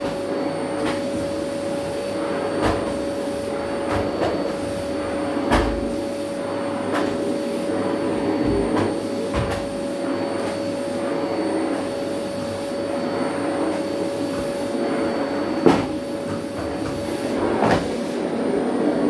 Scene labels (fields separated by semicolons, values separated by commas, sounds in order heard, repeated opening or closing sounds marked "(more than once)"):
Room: dorm room; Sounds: vacuum cleaner